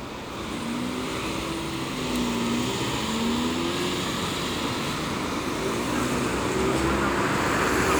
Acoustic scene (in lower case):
street